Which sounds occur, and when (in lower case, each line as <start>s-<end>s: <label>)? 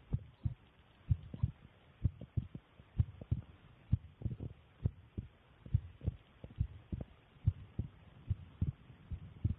0.0s-9.5s: background noise
0.1s-0.5s: heartbeat
1.0s-1.5s: heartbeat
2.0s-2.6s: heartbeat
2.9s-3.4s: heartbeat
3.9s-4.6s: heartbeat
4.8s-5.2s: heartbeat
5.6s-6.1s: heartbeat
6.4s-7.0s: heartbeat
7.4s-7.9s: heartbeat
8.3s-8.7s: heartbeat
9.1s-9.5s: heartbeat